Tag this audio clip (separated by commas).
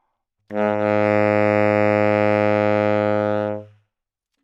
Music, Musical instrument, woodwind instrument